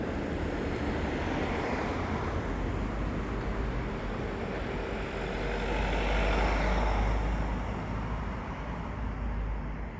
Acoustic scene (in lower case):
street